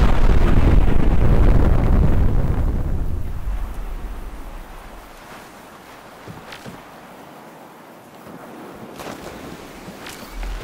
A long explosion goes off then wind blows